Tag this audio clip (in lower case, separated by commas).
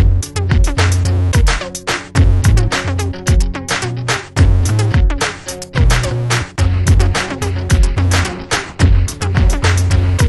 sampler